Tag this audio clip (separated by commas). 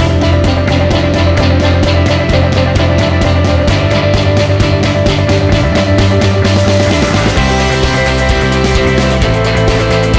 Music